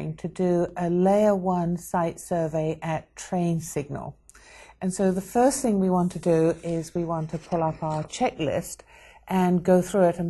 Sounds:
speech

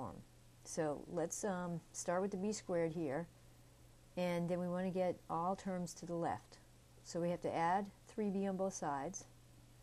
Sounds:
speech
inside a small room

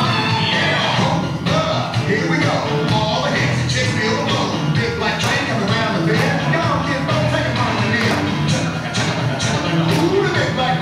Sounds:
music
country

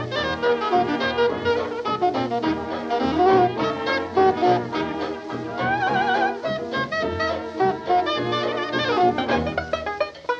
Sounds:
music

